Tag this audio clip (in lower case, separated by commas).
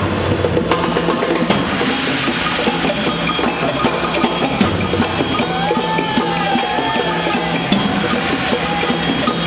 music, wood block, percussion